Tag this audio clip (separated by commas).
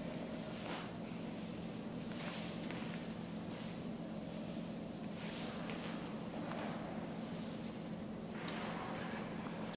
footsteps